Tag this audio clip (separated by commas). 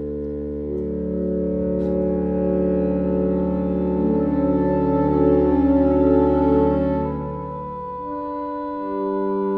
Brass instrument